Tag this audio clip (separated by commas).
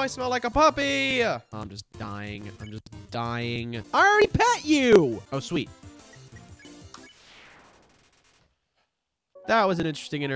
Music, Speech